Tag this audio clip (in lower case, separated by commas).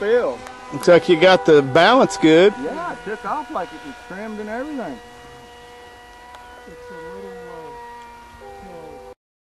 speech